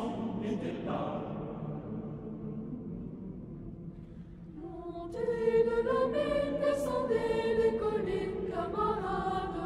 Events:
0.0s-1.4s: choir
0.0s-9.6s: music
4.5s-9.6s: choir

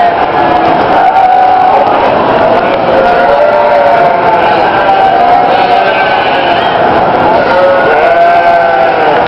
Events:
0.0s-9.2s: bleat

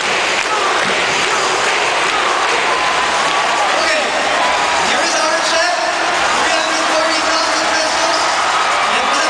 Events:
0.0s-9.2s: background noise
0.0s-9.2s: crowd
0.0s-9.2s: shout
0.3s-0.4s: clapping
0.4s-0.7s: man speaking
0.7s-0.9s: clapping
0.8s-1.2s: music
1.2s-1.3s: clapping
1.9s-2.1s: clapping
2.4s-2.8s: human voice
3.2s-3.4s: clapping
3.7s-4.0s: man speaking
4.8s-5.7s: man speaking
6.5s-8.2s: man speaking

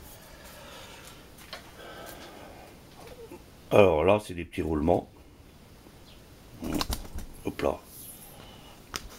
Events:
0.0s-1.3s: breathing
0.0s-9.1s: mechanisms
0.9s-1.2s: footsteps
1.4s-1.6s: tick
1.7s-2.7s: breathing
1.9s-2.3s: surface contact
2.8s-3.1s: generic impact sounds
3.0s-3.4s: human voice
3.6s-5.0s: male speech
6.0s-6.2s: bird song
6.5s-6.9s: human voice
6.6s-7.2s: generic impact sounds
7.4s-7.8s: male speech
7.9s-8.2s: bird song
7.9s-8.1s: generic impact sounds
8.3s-8.8s: breathing
8.9s-9.0s: tick
9.0s-9.1s: surface contact

